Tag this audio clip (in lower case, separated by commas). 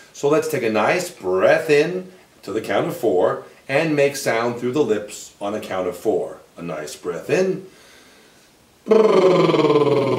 breathing, speech